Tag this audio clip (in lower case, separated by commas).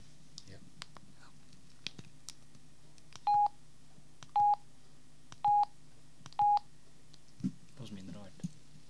telephone, alarm